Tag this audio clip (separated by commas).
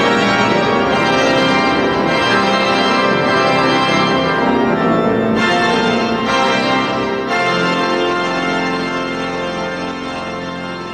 playing electronic organ